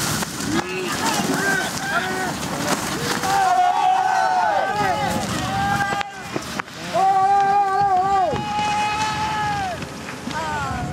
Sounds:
skiing

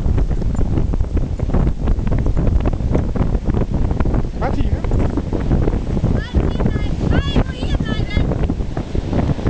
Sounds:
Wind, Wind noise (microphone)

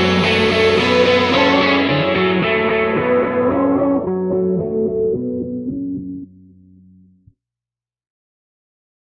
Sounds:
Music

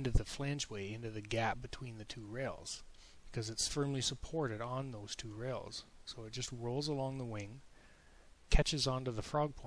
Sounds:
Speech

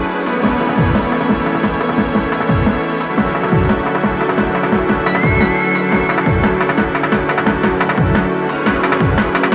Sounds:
Music

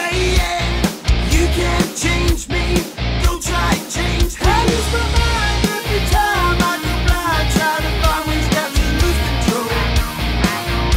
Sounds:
Music, Pop music

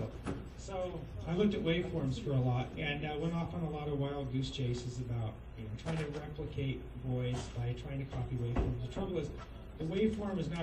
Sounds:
Speech, man speaking

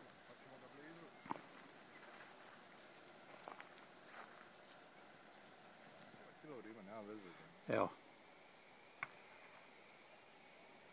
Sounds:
Speech

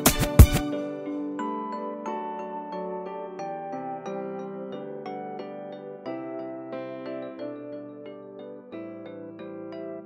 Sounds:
Music

